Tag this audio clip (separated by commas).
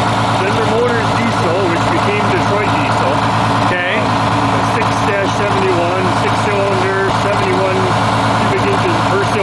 Speech, Vehicle